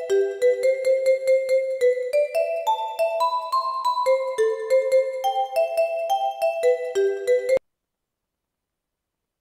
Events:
0.0s-7.6s: chime
0.0s-7.6s: music
7.6s-9.4s: background noise

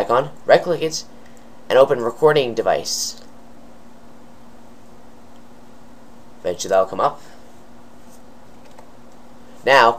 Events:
0.0s-1.1s: male speech
0.0s-9.9s: background noise
1.7s-3.4s: male speech
6.4s-7.3s: male speech
9.6s-9.9s: male speech

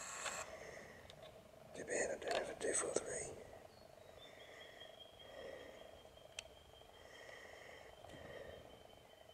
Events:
0.0s-9.3s: mechanisms
0.0s-9.3s: wind
0.4s-1.0s: surface contact
1.0s-1.1s: tick
1.2s-1.3s: generic impact sounds
1.7s-3.3s: whispering
2.2s-2.4s: tick
2.9s-3.0s: generic impact sounds
3.6s-9.3s: tweet
4.1s-5.0s: breathing
5.2s-5.9s: breathing
6.4s-6.5s: tick
6.8s-7.9s: breathing
8.0s-8.9s: breathing

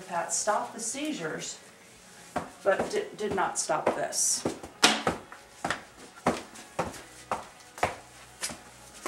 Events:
0.0s-1.6s: female speech
0.0s-9.0s: music
2.3s-2.4s: thud
2.6s-4.4s: female speech
2.7s-3.0s: thud
3.2s-3.4s: thud
3.8s-4.0s: thud
4.4s-4.7s: thud
4.8s-5.2s: thud
5.6s-5.8s: thud
6.2s-6.5s: thud
6.7s-7.0s: thud
7.2s-7.5s: thud
7.7s-8.0s: thud
8.4s-8.6s: thud

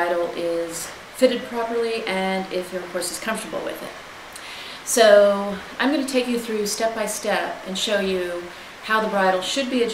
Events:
0.0s-0.8s: woman speaking
0.0s-9.9s: mechanisms
1.1s-3.9s: woman speaking
4.3s-4.8s: breathing
4.9s-5.6s: woman speaking
5.8s-8.5s: woman speaking
8.5s-8.8s: breathing
8.8s-9.9s: woman speaking

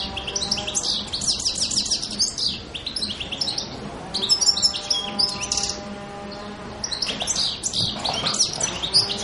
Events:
0.0s-0.8s: mechanisms
0.0s-2.6s: bird call
0.0s-9.2s: wind
2.7s-3.8s: bird call
3.9s-6.8s: mechanisms
4.1s-5.8s: bird call
6.3s-6.4s: bird call
6.8s-9.2s: bird call

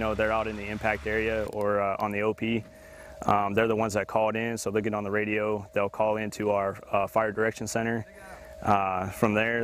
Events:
0.0s-1.4s: vehicle
0.0s-2.6s: male speech
1.5s-1.6s: tick
1.5s-9.6s: mechanisms
1.9s-2.0s: tick
2.7s-3.1s: breathing
3.2s-5.6s: male speech
3.2s-3.3s: tick
5.7s-6.8s: male speech
6.9s-8.4s: male speech
8.1s-8.5s: breathing
8.6s-9.6s: male speech

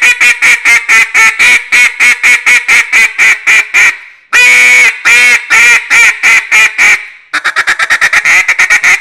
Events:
7.3s-9.0s: quack

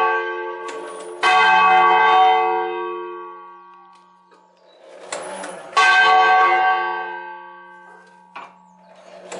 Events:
0.0s-9.3s: church bell
0.6s-9.3s: mechanisms

